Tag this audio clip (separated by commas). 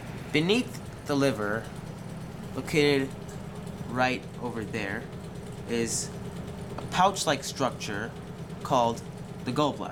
Speech